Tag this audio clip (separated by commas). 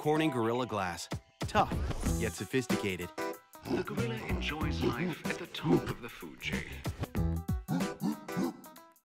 Music, Speech